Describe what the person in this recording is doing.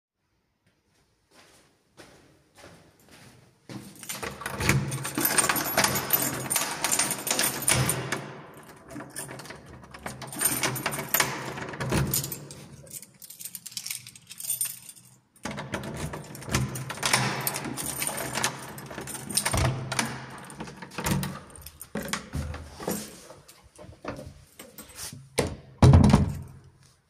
I walked to door, picked up my keys, opened the door (took me a while to open the door), and then closed it back.